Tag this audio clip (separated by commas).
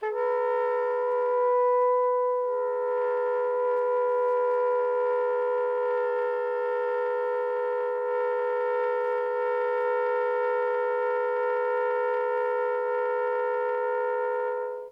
Music, Musical instrument, woodwind instrument